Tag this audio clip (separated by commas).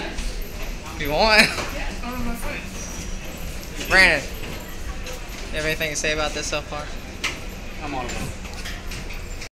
Speech